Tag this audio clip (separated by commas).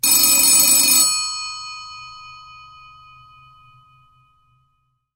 Alarm, Telephone